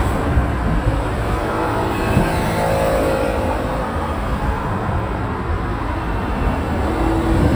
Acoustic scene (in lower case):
street